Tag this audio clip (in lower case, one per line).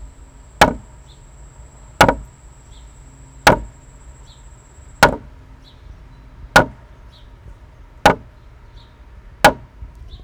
hammer
tools